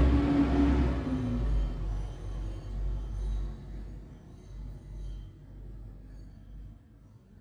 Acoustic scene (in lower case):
street